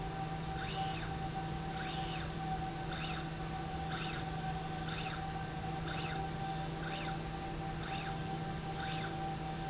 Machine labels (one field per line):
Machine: slide rail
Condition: normal